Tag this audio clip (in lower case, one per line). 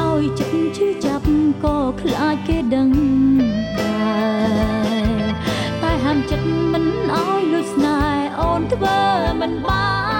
singing
music